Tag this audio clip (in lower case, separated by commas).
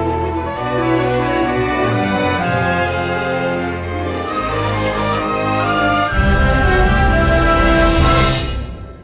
music